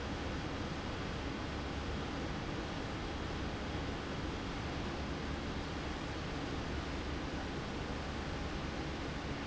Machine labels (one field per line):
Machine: fan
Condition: abnormal